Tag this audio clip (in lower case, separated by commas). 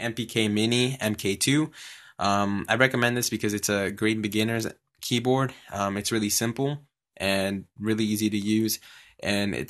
speech